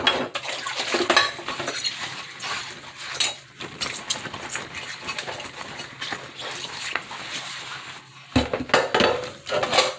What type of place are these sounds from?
kitchen